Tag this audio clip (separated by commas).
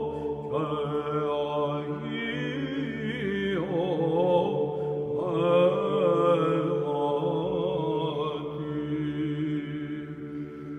Music, Mantra